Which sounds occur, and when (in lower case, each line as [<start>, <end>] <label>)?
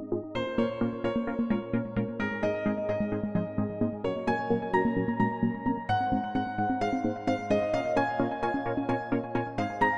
[0.00, 9.95] music